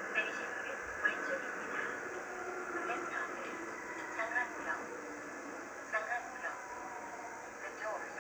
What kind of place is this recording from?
subway train